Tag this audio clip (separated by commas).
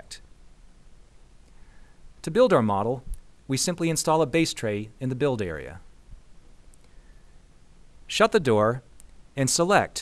Speech